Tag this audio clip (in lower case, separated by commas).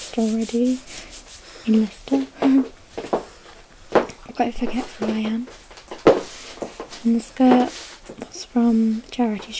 narration, speech